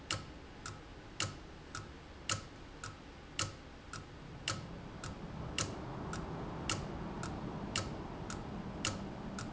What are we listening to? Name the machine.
valve